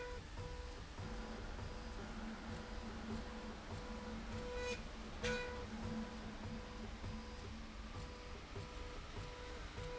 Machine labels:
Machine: slide rail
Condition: normal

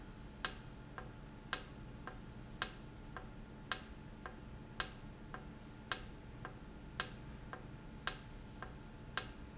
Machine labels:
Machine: valve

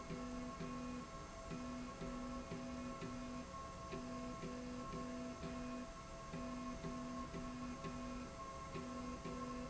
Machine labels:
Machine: slide rail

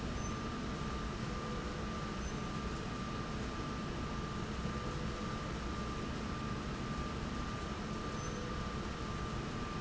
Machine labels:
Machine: slide rail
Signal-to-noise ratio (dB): -6 dB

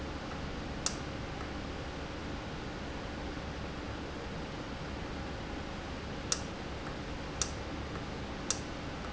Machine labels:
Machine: valve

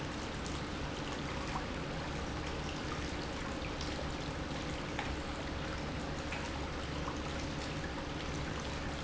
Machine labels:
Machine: pump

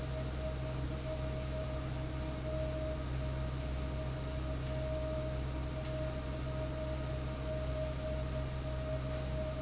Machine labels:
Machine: fan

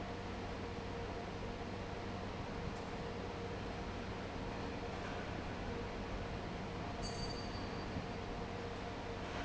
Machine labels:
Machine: fan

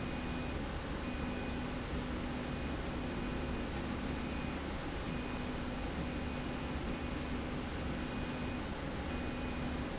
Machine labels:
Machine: slide rail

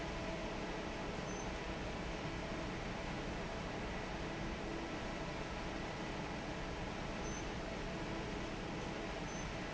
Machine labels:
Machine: fan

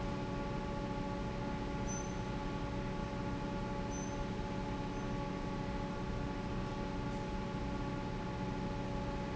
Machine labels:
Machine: fan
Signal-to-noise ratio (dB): -6 dB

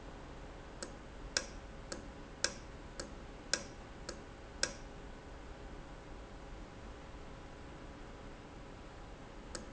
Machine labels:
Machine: valve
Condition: normal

